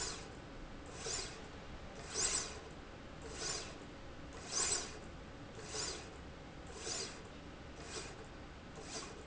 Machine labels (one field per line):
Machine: slide rail